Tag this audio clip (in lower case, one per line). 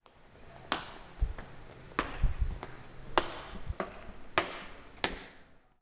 walk